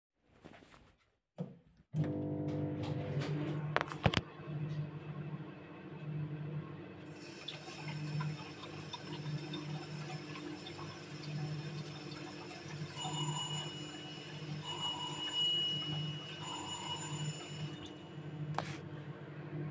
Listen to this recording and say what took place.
I turned on microwave. I started washing fruits with running water. After some time the bell rang and I turned water off to open the door.